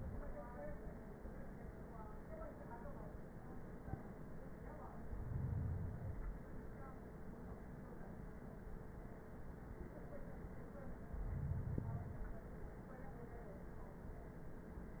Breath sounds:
4.91-6.41 s: inhalation
10.90-12.62 s: inhalation

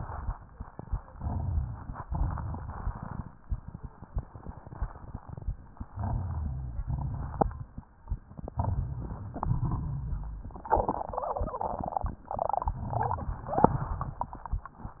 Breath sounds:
1.12-2.03 s: inhalation
1.12-2.03 s: crackles
2.07-3.33 s: exhalation
2.07-3.33 s: crackles
5.91-6.86 s: inhalation
5.91-6.86 s: rhonchi
6.89-7.84 s: exhalation
6.89-7.84 s: crackles
8.05-9.35 s: inhalation
8.07-9.35 s: crackles
9.37-10.49 s: exhalation
9.37-10.49 s: rhonchi

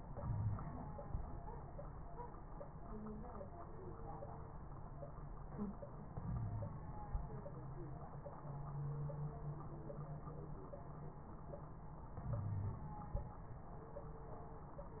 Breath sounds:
0.20-0.59 s: wheeze
6.22-6.74 s: inhalation
6.22-6.74 s: wheeze
12.26-12.88 s: inhalation
12.26-12.88 s: wheeze

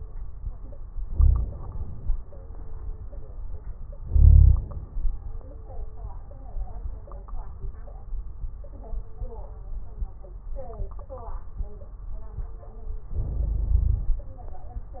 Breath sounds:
1.00-1.61 s: wheeze
1.00-2.14 s: inhalation
4.00-4.65 s: wheeze
4.00-4.90 s: inhalation
13.11-14.23 s: inhalation
13.11-14.23 s: wheeze

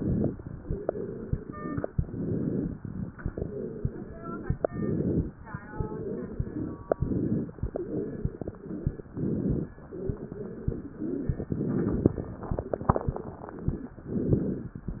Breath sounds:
0.59-1.80 s: exhalation
0.59-1.80 s: wheeze
1.97-2.77 s: inhalation
3.25-4.52 s: exhalation
3.25-4.52 s: wheeze
4.57-5.37 s: inhalation
5.54-6.81 s: exhalation
5.54-6.81 s: wheeze
6.98-7.57 s: inhalation
7.63-9.03 s: exhalation
7.63-9.03 s: wheeze
9.13-9.72 s: inhalation
10.02-11.42 s: exhalation
10.02-11.42 s: wheeze
11.46-12.18 s: inhalation
12.29-13.93 s: exhalation
12.29-13.93 s: wheeze
14.10-14.82 s: inhalation

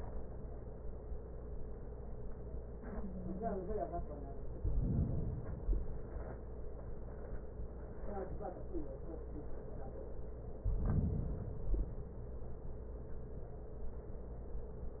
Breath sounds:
4.54-5.50 s: inhalation
5.49-6.39 s: exhalation
10.63-11.58 s: inhalation
11.60-12.55 s: exhalation

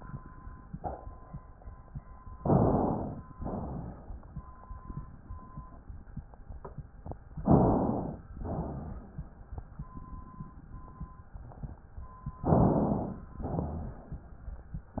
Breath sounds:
2.37-3.30 s: inhalation
3.34-4.27 s: exhalation
7.42-8.24 s: inhalation
8.37-9.19 s: exhalation
12.45-13.34 s: inhalation
13.43-14.33 s: exhalation
13.43-14.33 s: rhonchi

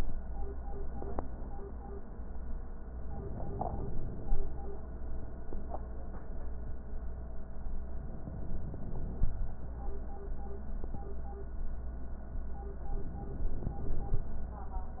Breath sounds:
3.06-4.55 s: inhalation
7.94-9.44 s: inhalation
12.87-14.37 s: inhalation

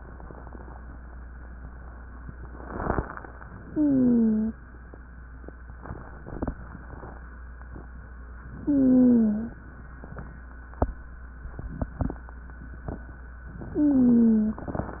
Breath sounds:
3.67-4.54 s: inhalation
3.67-4.54 s: wheeze
8.62-9.56 s: inhalation
8.62-9.56 s: wheeze
13.62-15.00 s: inhalation
13.70-14.64 s: wheeze

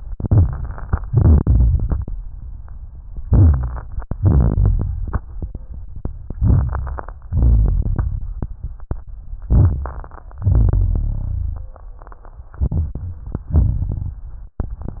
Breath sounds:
1.06-2.09 s: exhalation
3.27-3.83 s: inhalation
3.30-3.82 s: rhonchi
4.15-5.77 s: exhalation
6.38-7.20 s: inhalation
6.38-7.20 s: crackles
7.26-8.98 s: exhalation
9.48-10.38 s: inhalation
9.48-10.38 s: crackles
10.44-11.77 s: exhalation
10.44-11.77 s: rhonchi
12.58-13.24 s: inhalation
13.35-14.24 s: exhalation

